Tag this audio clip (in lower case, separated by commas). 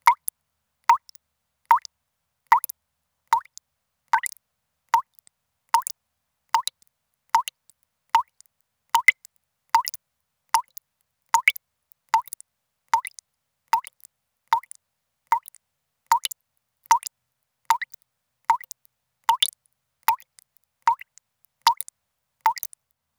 liquid, water, rain, raindrop, domestic sounds, faucet, drip